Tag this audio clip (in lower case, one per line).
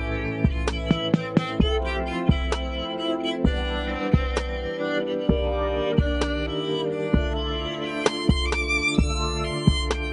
musical instrument
violin
music